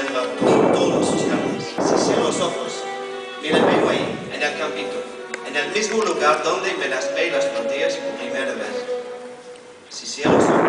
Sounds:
Speech, Music

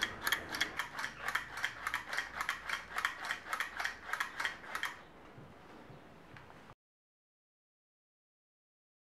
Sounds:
Ratchet, Gears, Mechanisms

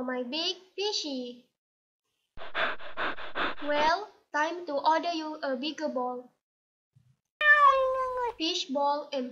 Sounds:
Speech

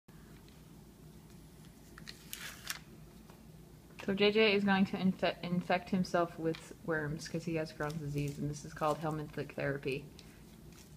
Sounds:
inside a small room, Speech

